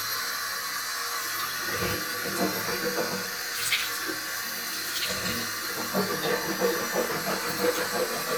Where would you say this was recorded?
in a restroom